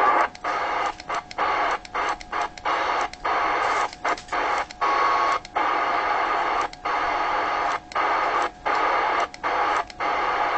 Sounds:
Radio

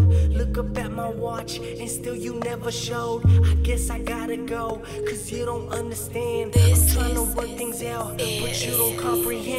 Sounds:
Independent music, Music

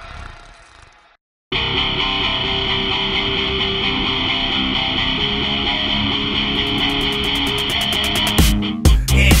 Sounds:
Music, Funk

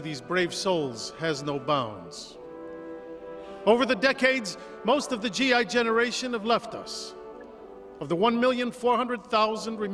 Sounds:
Music, Speech

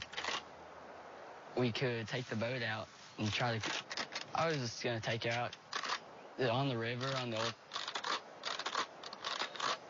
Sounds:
Speech

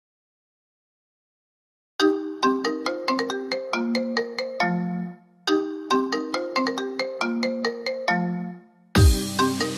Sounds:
Electronic music, Dubstep, Music, Ringtone

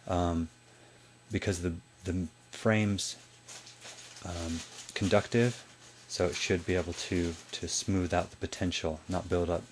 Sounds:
Speech

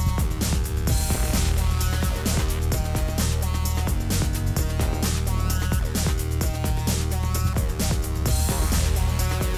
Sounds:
Music

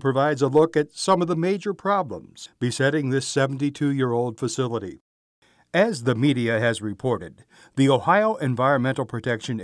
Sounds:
Speech

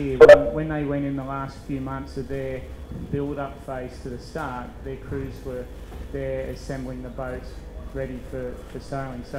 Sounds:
Speech

